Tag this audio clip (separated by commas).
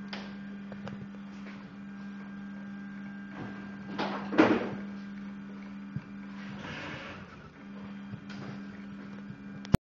Printer